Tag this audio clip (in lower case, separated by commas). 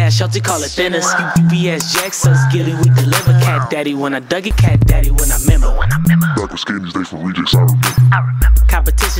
music, singing